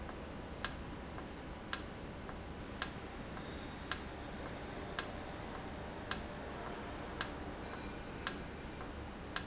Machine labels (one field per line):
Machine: valve